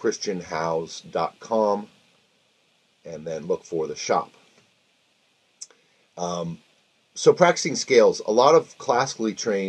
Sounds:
Speech

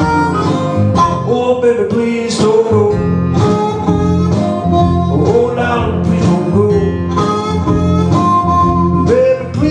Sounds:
Music, Harmonica

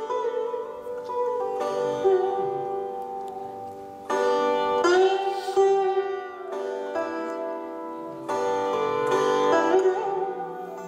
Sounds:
Music, Sitar

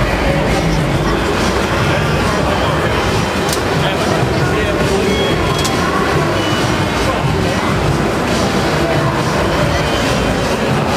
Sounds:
Speech, Music

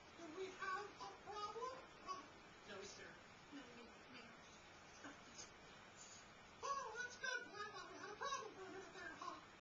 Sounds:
Speech

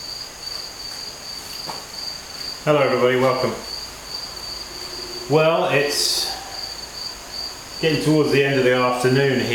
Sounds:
Speech, inside a small room

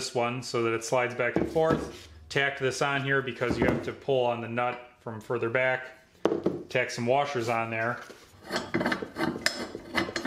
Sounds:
Speech, Tools

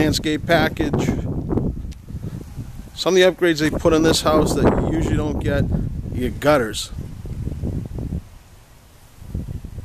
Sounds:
Speech

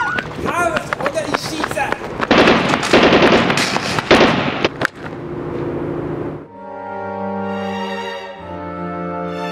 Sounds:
lighting firecrackers

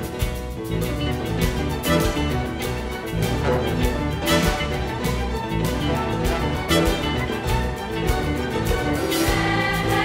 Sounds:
Music

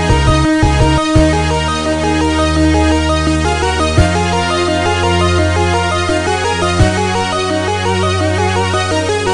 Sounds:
Music

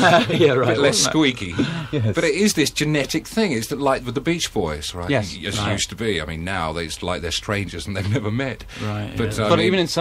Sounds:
Speech

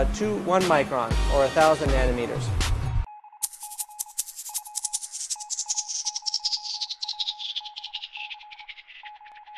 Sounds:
inside a small room, Music, Speech

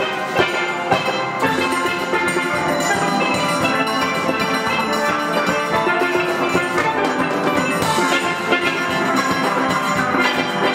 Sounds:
Music, Steelpan

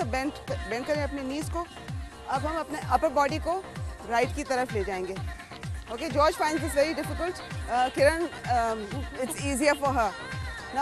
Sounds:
Speech, Music

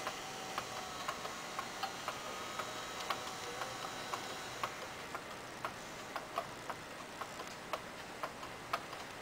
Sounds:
Tick-tock, Tick

